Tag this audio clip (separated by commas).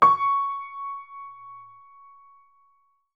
Keyboard (musical), Musical instrument, Music, Piano